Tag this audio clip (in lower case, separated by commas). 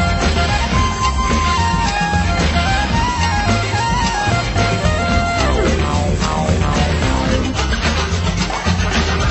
music